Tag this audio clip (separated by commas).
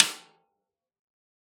Percussion, Drum, Music, Snare drum, Musical instrument